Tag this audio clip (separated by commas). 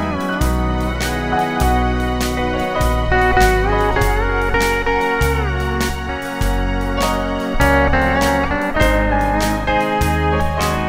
slide guitar